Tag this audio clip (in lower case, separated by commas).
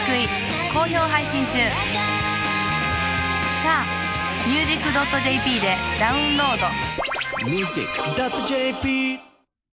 blues, music, speech